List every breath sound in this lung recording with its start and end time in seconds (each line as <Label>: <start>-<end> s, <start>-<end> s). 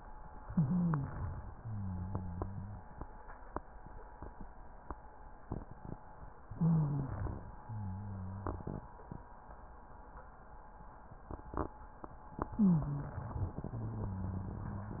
Inhalation: 0.44-1.45 s, 6.46-7.57 s, 12.49-13.55 s
Exhalation: 1.55-2.99 s, 7.63-9.00 s, 13.57-15.00 s
Wheeze: 0.44-1.13 s, 6.50-7.15 s, 12.53-13.17 s
Rhonchi: 1.55-2.65 s, 7.67-8.55 s, 13.71-15.00 s